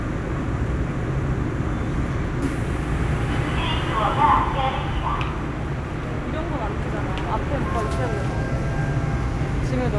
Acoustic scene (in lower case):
subway train